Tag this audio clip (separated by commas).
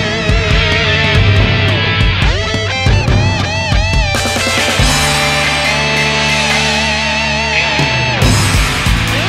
Music